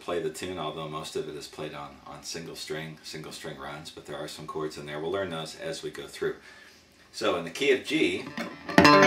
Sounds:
speech, musical instrument, strum, electric guitar, guitar, plucked string instrument, music

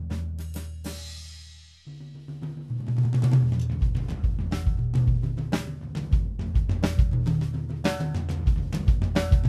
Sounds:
music, bass drum, drum, drum kit, musical instrument

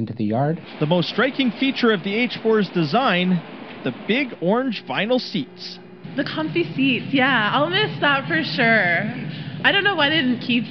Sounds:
rail transport, speech, vehicle, train

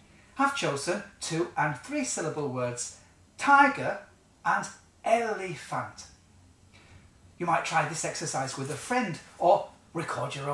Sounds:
speech

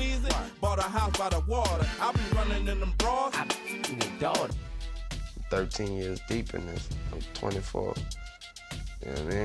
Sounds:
music, speech

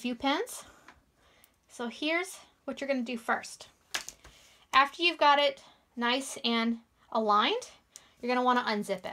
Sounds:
zipper (clothing), speech

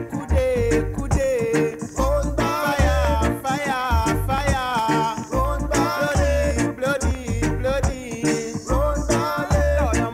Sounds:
independent music, music

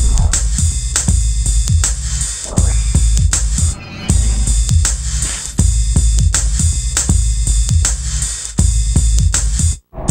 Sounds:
music, drum machine

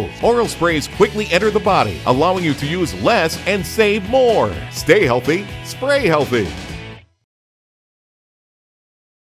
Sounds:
speech, music

